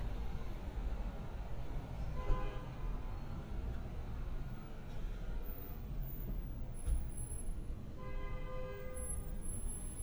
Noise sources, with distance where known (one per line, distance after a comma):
car horn